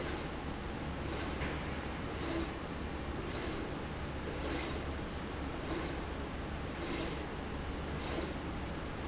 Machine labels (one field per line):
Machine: slide rail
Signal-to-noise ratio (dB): -6 dB